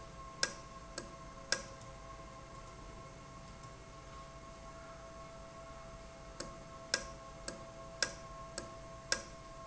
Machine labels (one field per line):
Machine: valve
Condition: normal